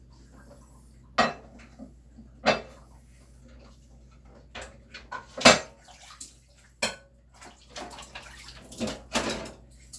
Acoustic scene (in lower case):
kitchen